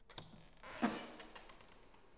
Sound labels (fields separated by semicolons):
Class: door; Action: opening